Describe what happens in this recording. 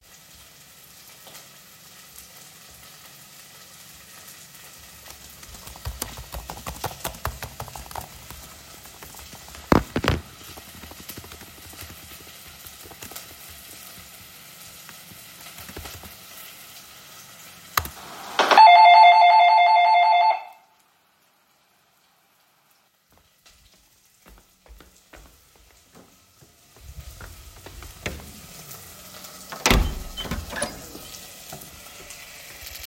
Cooking sounds can be heard in the background. I was typing when the doorbell rang. I walked to the door, opened it, and then closed it again.